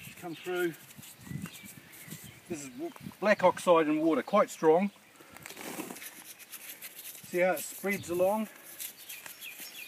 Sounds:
tweet, Bird vocalization, outside, rural or natural, Environmental noise, Speech

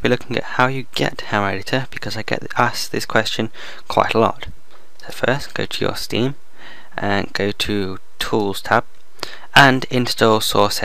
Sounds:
Speech

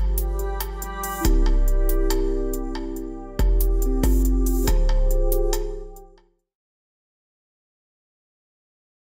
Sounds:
Music

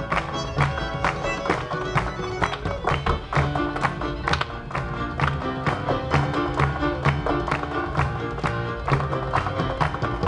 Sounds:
Music, fiddle, Musical instrument

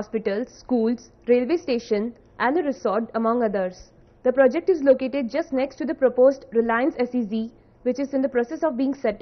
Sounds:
Speech

